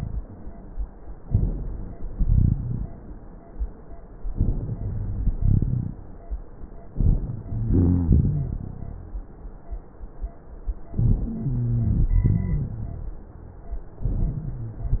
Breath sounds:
Inhalation: 1.23-2.05 s, 4.38-5.31 s, 6.95-7.65 s, 10.99-11.82 s, 14.10-14.93 s
Exhalation: 2.16-2.98 s, 5.39-6.00 s, 7.72-8.56 s, 11.92-12.75 s
Wheeze: 11.23-12.07 s, 14.10-14.93 s
Rhonchi: 2.16-2.98 s, 5.39-6.00 s, 7.72-8.56 s, 11.90-12.73 s

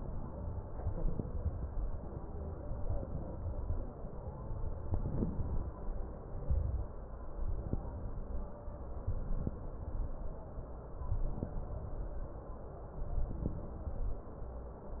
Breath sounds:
Inhalation: 0.78-1.65 s, 2.87-3.74 s, 4.86-5.74 s, 6.31-6.93 s, 7.47-8.24 s, 9.06-10.16 s, 11.06-12.16 s, 13.07-14.17 s
Crackles: 0.78-1.65 s, 2.87-3.74 s, 4.86-5.74 s, 6.31-6.93 s, 7.47-8.24 s, 9.06-10.16 s, 11.06-12.16 s, 13.07-14.17 s

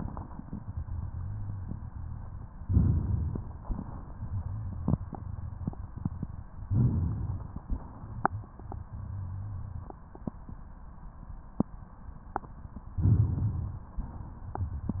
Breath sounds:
Inhalation: 2.63-3.60 s, 6.68-7.65 s, 13.03-13.99 s
Exhalation: 3.63-4.54 s, 7.67-8.89 s
Rhonchi: 8.56-9.87 s

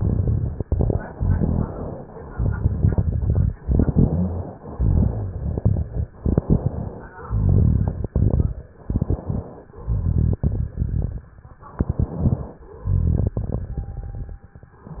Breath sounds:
Inhalation: 0.00-0.97 s, 2.35-3.49 s, 4.74-5.84 s, 7.25-8.50 s, 9.83-11.18 s, 12.86-14.44 s
Exhalation: 1.12-2.09 s, 3.64-4.42 s, 6.18-7.08 s, 8.77-9.66 s, 11.78-12.68 s
Rhonchi: 1.12-1.77 s, 3.64-4.42 s
Crackles: 0.00-0.97 s, 2.35-3.49 s, 4.74-5.84 s, 6.18-7.08 s, 7.25-8.50 s, 8.77-9.66 s, 9.83-11.18 s, 11.78-12.68 s, 12.86-14.44 s

